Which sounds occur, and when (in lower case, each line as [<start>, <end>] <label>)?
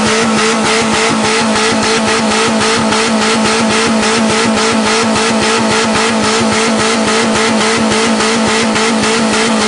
[0.00, 9.65] vroom
[0.00, 9.65] car